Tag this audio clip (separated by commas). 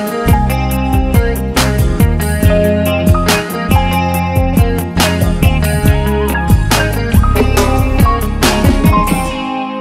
Music